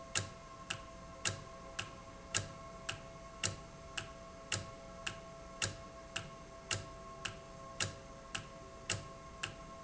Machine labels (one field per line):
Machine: valve